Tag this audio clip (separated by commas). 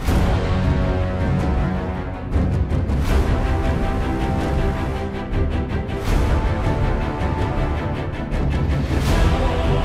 Music